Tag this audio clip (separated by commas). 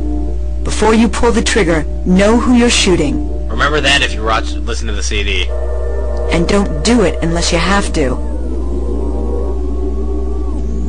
Music, Speech